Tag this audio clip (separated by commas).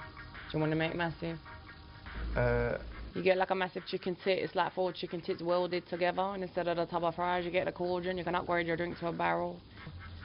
Speech